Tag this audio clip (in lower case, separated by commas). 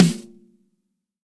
snare drum, percussion, musical instrument, drum, music